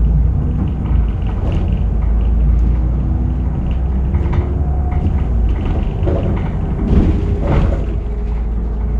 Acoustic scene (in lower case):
bus